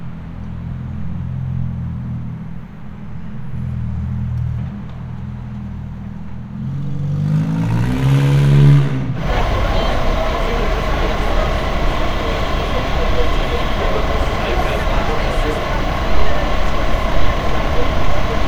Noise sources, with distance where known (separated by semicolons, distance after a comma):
engine of unclear size